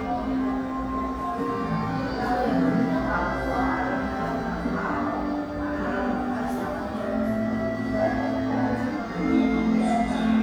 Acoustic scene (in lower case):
crowded indoor space